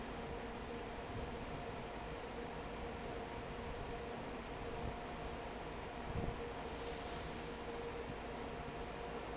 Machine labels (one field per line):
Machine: fan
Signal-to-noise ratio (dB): 6 dB